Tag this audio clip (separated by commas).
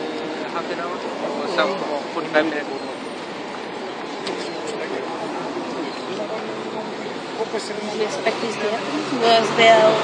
Speech